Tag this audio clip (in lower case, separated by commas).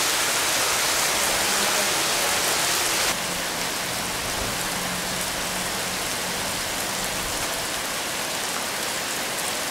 raindrop, rain, rain on surface